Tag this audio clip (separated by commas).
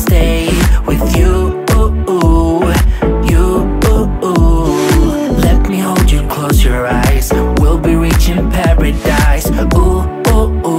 Music